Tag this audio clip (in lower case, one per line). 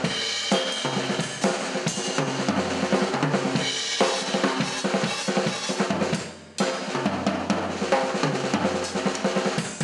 drum kit
drum
musical instrument
music